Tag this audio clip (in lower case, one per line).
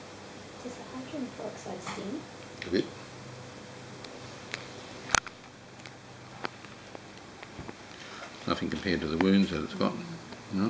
speech